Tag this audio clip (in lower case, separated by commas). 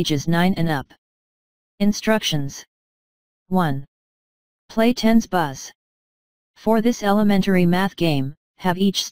speech